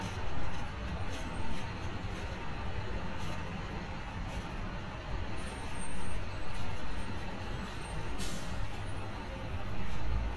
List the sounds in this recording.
large-sounding engine